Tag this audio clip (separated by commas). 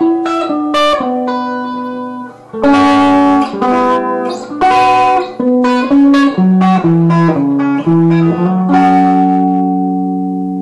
Plucked string instrument, Music, Guitar, Musical instrument